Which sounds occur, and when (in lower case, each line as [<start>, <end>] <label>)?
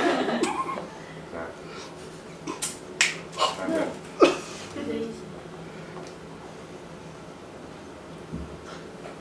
[0.00, 0.77] laughter
[0.00, 9.20] mechanisms
[0.68, 0.78] tick
[1.27, 1.52] male speech
[2.95, 3.20] finger snapping
[3.34, 3.48] human sounds
[3.48, 3.90] male speech
[3.63, 3.88] woman speaking
[4.13, 4.53] cough
[4.68, 5.21] woman speaking
[5.31, 5.39] tick
[5.89, 6.01] tick
[6.36, 6.47] tick
[8.99, 9.20] male speech